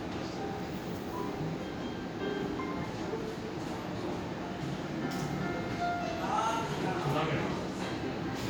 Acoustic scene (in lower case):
cafe